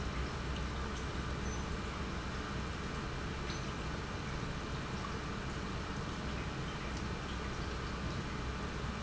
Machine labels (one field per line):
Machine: pump